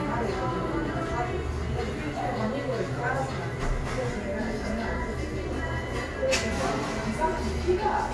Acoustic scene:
cafe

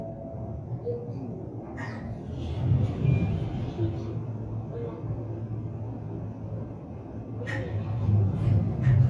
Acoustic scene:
elevator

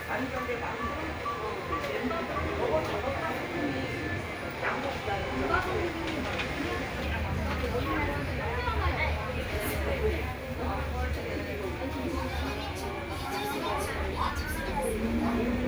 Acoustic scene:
crowded indoor space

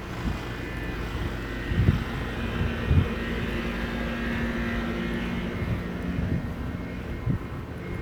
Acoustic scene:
residential area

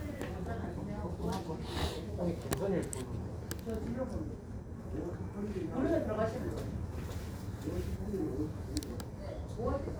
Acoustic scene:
crowded indoor space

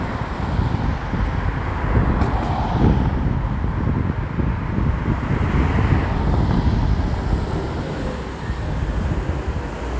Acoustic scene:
street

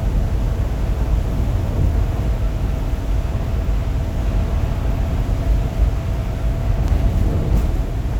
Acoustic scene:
bus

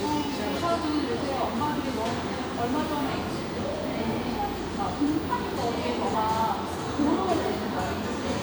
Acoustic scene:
cafe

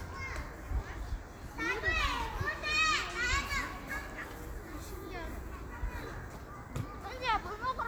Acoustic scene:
park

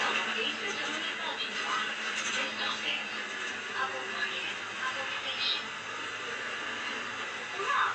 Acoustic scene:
bus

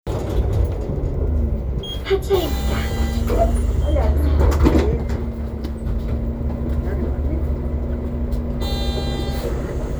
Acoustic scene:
bus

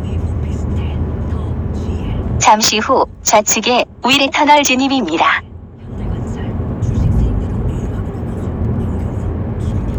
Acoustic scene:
car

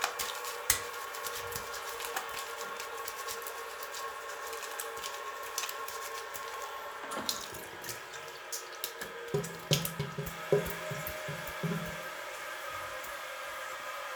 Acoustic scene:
restroom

